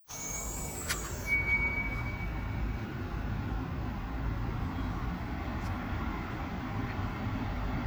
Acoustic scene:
street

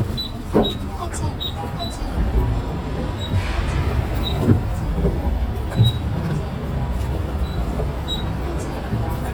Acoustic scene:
bus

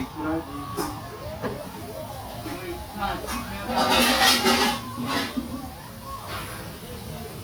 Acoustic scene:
restaurant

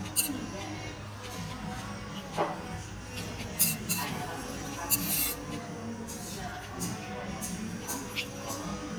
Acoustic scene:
restaurant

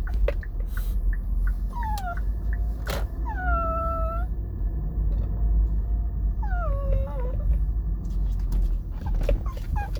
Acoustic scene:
car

